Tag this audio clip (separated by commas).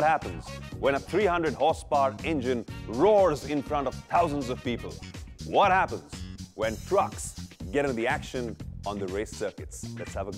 Music, Speech